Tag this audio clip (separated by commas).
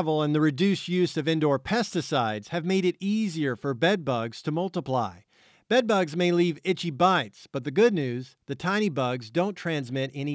Speech